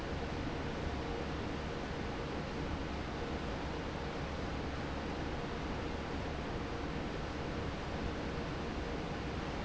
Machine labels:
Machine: fan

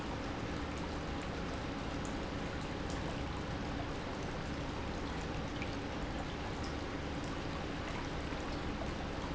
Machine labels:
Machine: pump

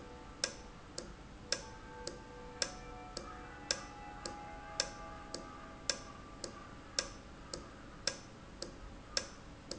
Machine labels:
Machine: valve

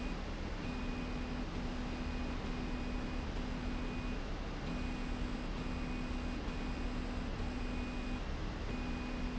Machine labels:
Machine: slide rail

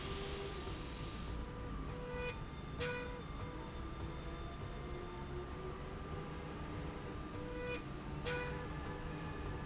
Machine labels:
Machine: slide rail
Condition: normal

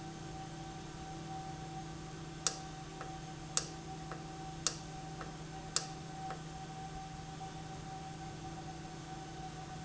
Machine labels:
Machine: valve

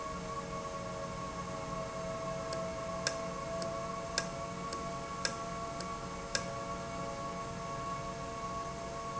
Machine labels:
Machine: valve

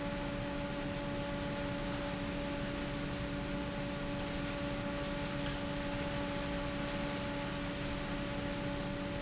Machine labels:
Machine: fan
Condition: abnormal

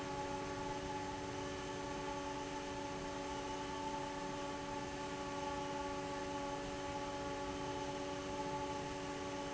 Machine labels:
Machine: fan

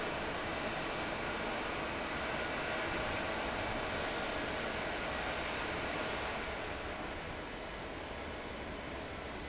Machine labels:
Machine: fan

